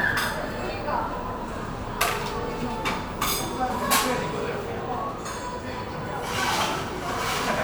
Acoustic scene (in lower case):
cafe